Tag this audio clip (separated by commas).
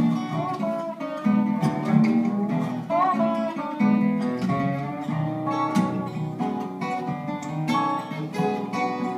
Guitar, Music, Plucked string instrument, Musical instrument, Strum